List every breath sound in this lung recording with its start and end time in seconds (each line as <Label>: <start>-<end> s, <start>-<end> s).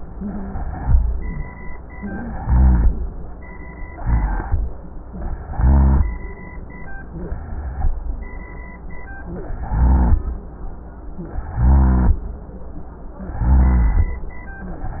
Inhalation: 0.00-0.80 s, 2.37-3.02 s, 4.00-4.65 s, 5.41-6.05 s, 9.54-10.19 s, 11.55-12.20 s, 13.36-14.16 s
Rhonchi: 0.09-0.82 s, 2.37-3.02 s, 4.00-4.65 s, 5.41-6.05 s, 9.54-10.19 s, 11.55-12.20 s, 13.36-14.16 s